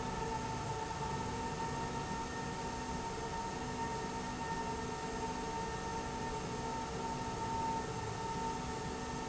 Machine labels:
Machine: slide rail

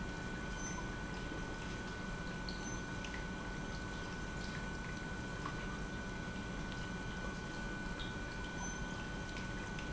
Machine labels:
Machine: pump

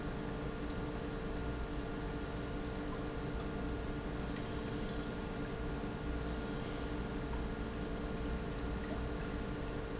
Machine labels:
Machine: pump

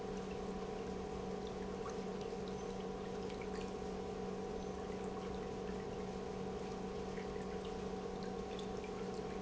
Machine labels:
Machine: pump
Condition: normal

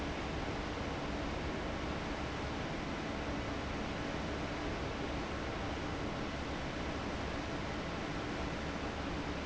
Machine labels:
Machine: fan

